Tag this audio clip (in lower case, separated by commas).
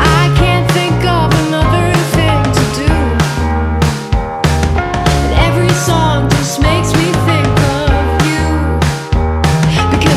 music, independent music